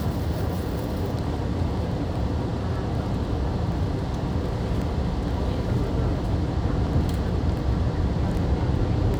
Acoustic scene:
subway train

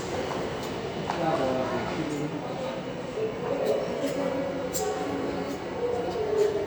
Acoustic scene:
subway station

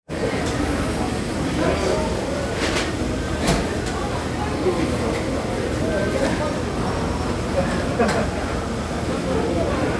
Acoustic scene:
restaurant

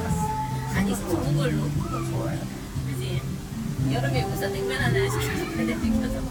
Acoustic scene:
park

